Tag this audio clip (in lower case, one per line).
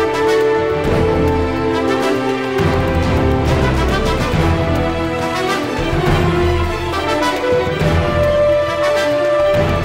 music
exciting music